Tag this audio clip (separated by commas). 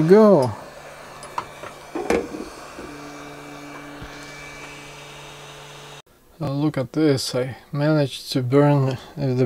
Speech